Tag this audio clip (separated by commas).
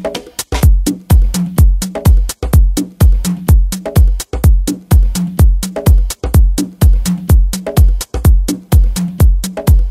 Music